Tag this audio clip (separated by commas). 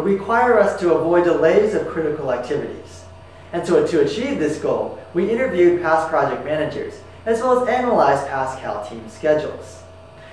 Speech